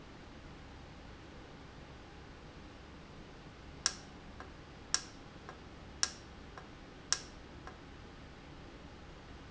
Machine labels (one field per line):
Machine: valve